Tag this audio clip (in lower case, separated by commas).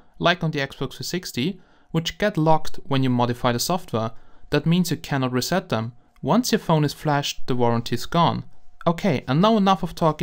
speech